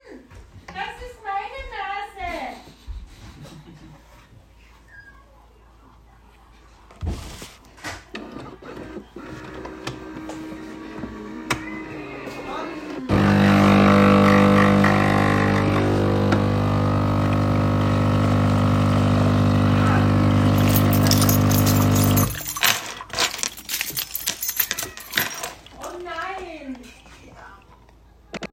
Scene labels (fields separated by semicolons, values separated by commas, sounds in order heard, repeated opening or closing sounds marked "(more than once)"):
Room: kitchen; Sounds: coffee machine, keys